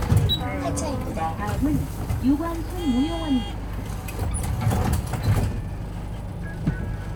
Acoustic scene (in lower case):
bus